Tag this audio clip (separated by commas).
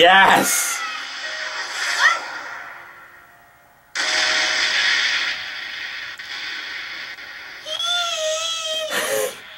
Speech, inside a small room, Music, Giggle